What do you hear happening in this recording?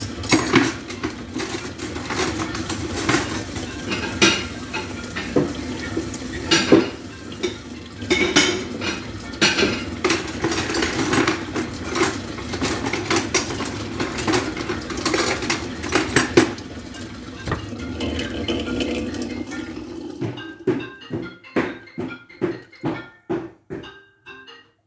While I was cleaning the dishes using a running water from the kitchen sink my phone rang